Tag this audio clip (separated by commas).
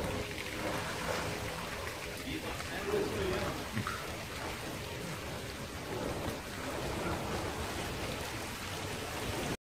Rain on surface, Speech